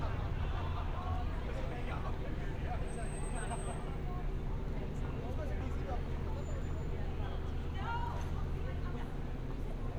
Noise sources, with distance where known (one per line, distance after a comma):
person or small group talking